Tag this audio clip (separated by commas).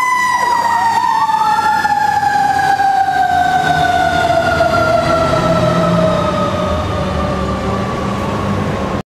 Vehicle, vroom